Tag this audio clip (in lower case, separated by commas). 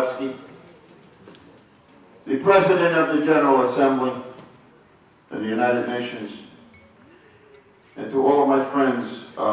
man speaking, narration, speech